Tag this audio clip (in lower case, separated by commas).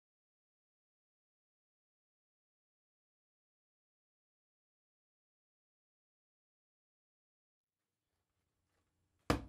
tap